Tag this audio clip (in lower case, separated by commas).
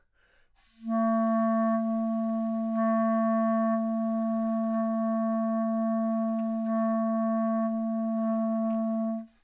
musical instrument, music, wind instrument